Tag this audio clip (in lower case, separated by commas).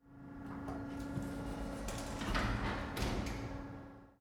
sliding door, door, domestic sounds